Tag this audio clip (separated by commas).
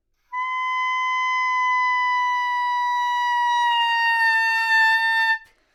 Musical instrument, woodwind instrument, Music